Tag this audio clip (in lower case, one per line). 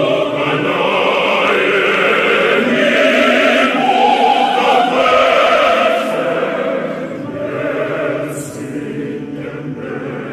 singing choir